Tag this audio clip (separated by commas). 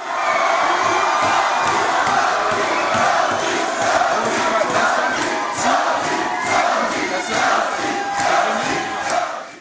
Speech